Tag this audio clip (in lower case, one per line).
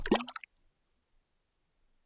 liquid
splash